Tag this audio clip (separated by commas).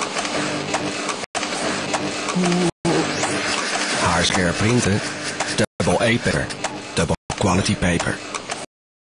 Speech, Printer